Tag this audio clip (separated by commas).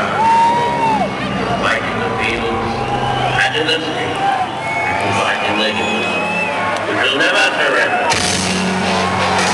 Music, man speaking, Speech